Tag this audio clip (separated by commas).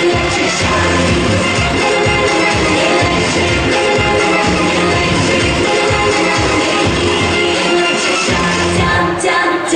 inside a large room or hall, Music